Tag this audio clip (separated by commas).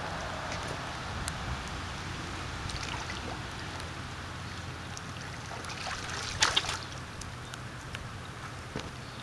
Pour